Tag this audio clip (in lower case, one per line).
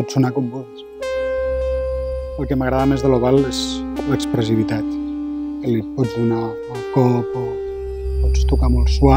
music
speech